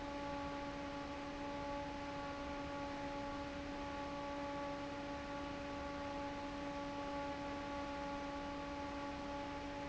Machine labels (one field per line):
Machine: fan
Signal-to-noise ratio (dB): 6 dB